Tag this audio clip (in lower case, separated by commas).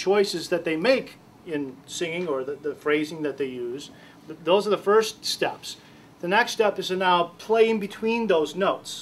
speech